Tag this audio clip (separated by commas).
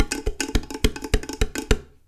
dishes, pots and pans, Domestic sounds